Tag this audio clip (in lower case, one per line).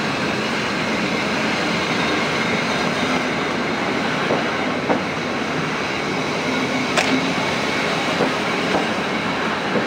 railroad car
rail transport
subway
train
clickety-clack